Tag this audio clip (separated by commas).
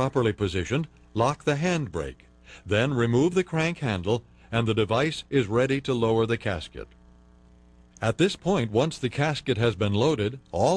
Speech